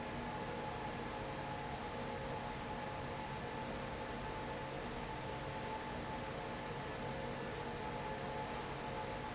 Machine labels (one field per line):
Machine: fan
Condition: abnormal